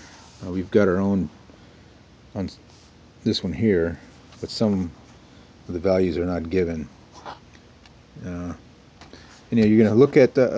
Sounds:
speech

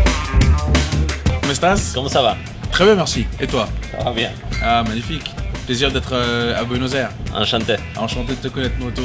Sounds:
music
speech

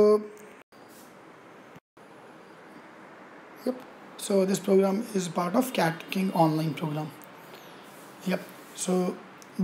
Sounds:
speech

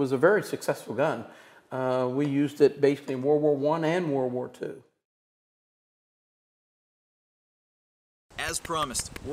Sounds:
gasp

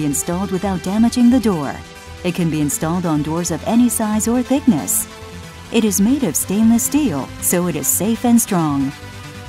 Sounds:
speech
music

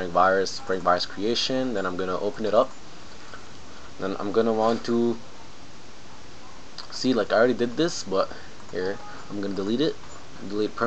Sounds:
speech

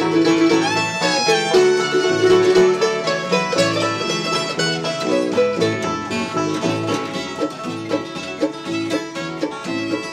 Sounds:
banjo
music

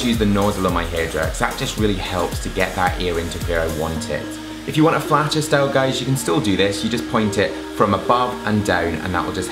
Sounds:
hair dryer drying

